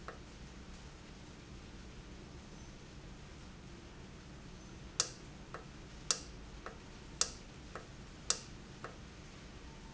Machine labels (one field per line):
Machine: valve